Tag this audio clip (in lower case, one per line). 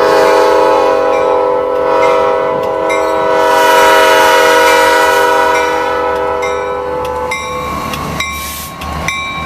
train
rail transport
railroad car
train horn